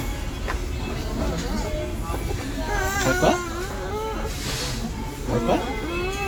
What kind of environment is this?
restaurant